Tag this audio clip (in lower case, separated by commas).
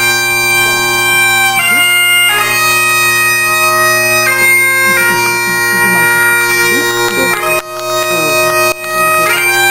wedding music, music